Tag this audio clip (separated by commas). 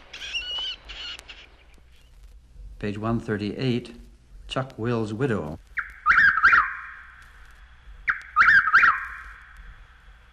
bird song, Bird, Speech